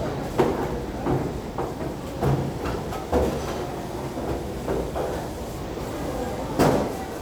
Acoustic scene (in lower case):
restaurant